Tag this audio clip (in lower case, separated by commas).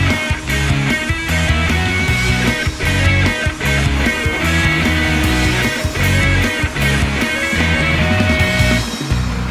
music